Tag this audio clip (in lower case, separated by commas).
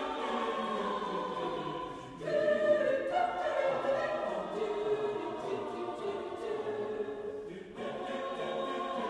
singing choir, choir